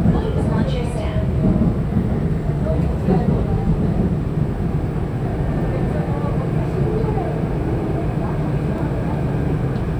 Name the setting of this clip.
subway train